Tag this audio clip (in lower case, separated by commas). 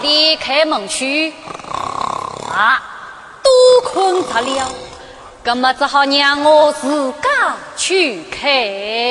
speech, female speech